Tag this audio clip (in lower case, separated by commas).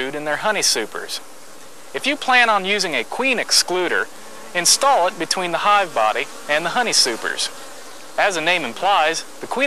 bee or wasp, housefly, insect